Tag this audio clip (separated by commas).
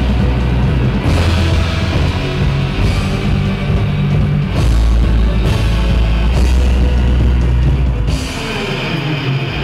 Progressive rock, Rock music, Music